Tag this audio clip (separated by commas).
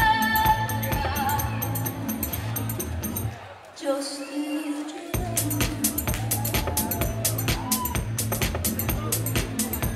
Crowd, Music